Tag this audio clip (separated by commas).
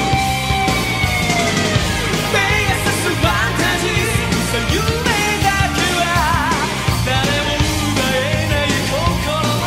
Dance music, Music